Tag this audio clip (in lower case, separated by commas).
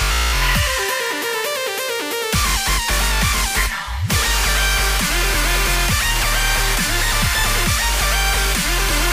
music, dubstep, electronic music